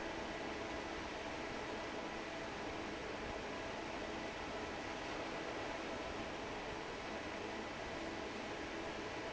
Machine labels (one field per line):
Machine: fan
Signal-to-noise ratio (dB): 6 dB